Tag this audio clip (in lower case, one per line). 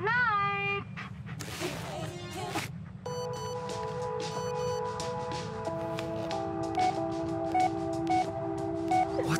opening or closing car doors